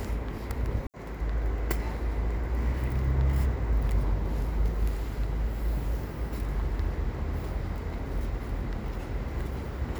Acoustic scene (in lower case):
residential area